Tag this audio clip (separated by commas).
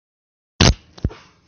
Fart